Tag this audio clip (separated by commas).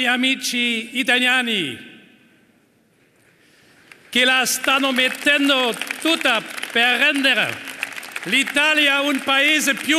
monologue, Male speech, Speech